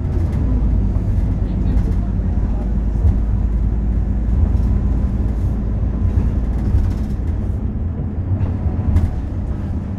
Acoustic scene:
bus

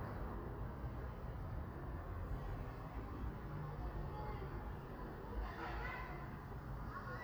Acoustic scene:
residential area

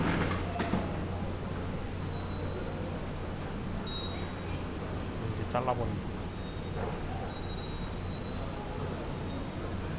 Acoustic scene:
subway station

